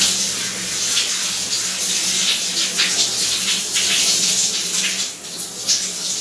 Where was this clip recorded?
in a restroom